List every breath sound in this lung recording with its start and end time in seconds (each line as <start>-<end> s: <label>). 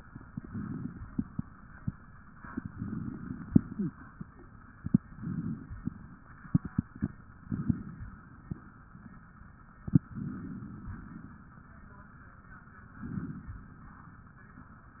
0.40-1.01 s: inhalation
2.71-3.45 s: inhalation
3.76-3.92 s: wheeze
5.17-5.71 s: inhalation
7.49-8.04 s: inhalation
10.21-10.91 s: inhalation
13.05-13.59 s: inhalation